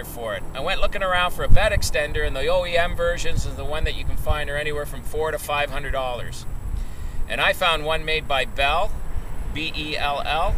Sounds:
Speech

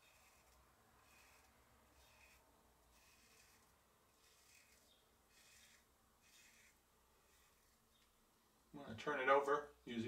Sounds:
Silence, Speech

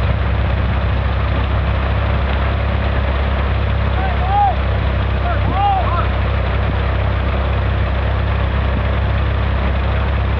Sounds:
Speech, Water, Vehicle

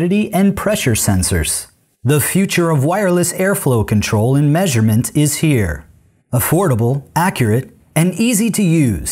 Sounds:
Speech

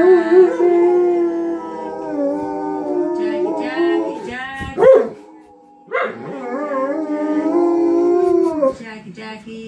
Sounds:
dog howling

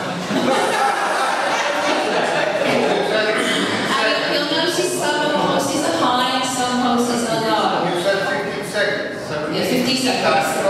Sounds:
Speech, inside a large room or hall

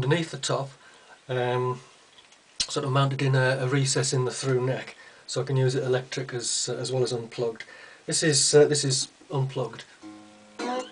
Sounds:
Speech, Plucked string instrument

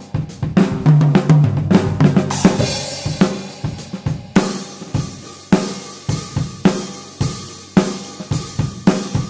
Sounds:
Snare drum, Music

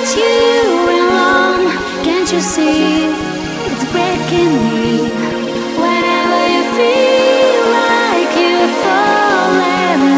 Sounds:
Music

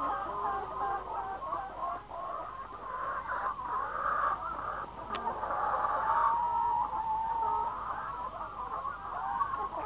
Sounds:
Fowl, Cluck, Chicken

